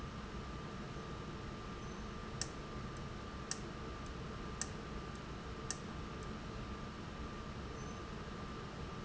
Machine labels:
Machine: valve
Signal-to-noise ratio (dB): 0 dB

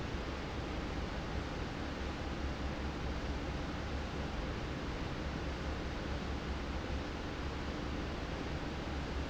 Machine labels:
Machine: fan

